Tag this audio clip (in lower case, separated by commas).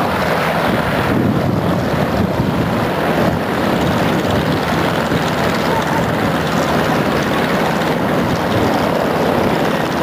vehicle, outside, rural or natural